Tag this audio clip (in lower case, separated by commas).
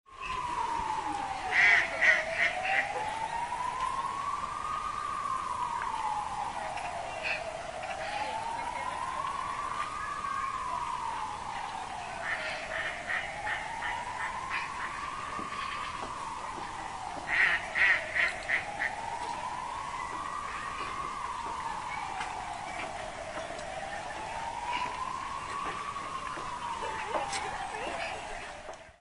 fowl, animal, wild animals, livestock, bird